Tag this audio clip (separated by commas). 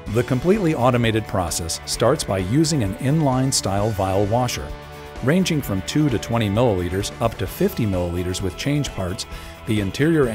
Music, Speech